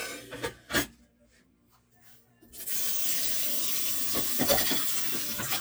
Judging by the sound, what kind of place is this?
kitchen